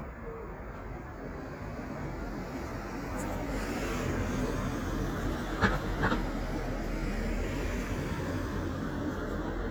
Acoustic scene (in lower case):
residential area